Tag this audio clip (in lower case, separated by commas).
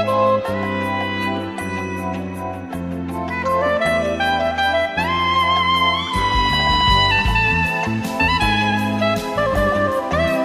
music